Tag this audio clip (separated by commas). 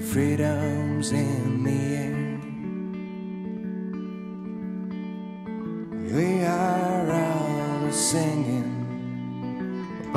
Music, Independent music